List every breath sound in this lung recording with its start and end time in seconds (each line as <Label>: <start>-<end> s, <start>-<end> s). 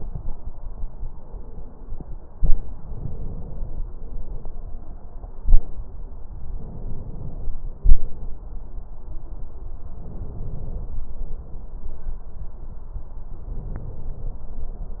Inhalation: 2.76-3.84 s, 6.48-7.56 s, 9.93-11.01 s, 13.38-14.45 s
Exhalation: 3.92-4.64 s, 7.82-8.35 s, 11.12-11.93 s
Crackles: 2.74-3.81 s